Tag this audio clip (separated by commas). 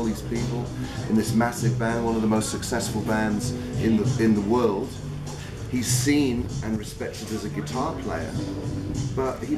Music, Speech